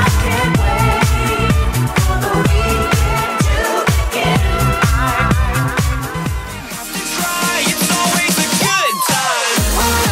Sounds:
Music, Disco

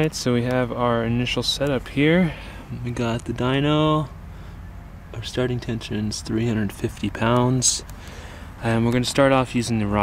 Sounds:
Speech

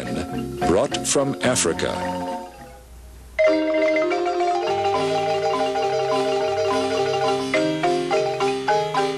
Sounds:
Clatter, Speech, Music

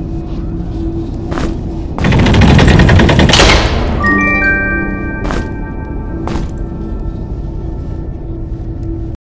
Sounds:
Sound effect

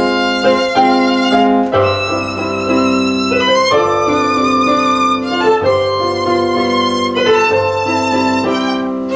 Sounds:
fiddle, Music, Musical instrument

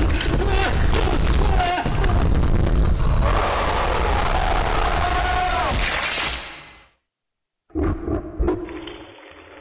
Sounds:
Thump

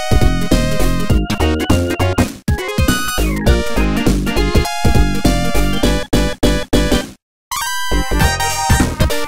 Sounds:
Music, Rhythm and blues

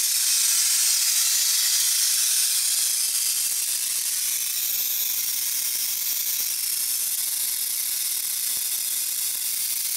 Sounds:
inside a small room

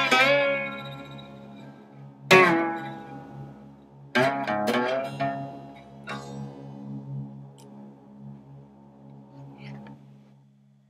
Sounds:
slide guitar

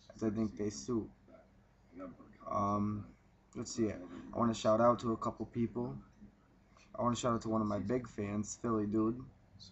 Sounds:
Speech

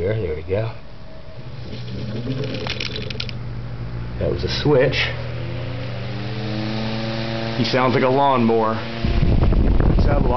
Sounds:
Speech, Mechanical fan

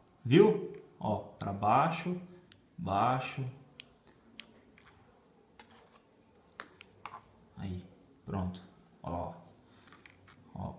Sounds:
Speech, inside a small room

